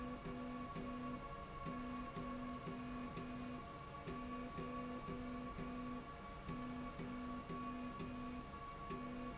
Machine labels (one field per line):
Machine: slide rail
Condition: normal